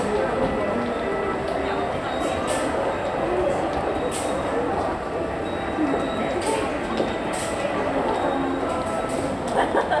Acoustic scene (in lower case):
subway station